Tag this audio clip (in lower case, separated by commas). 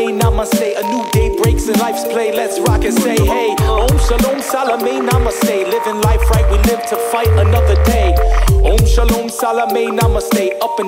music, blues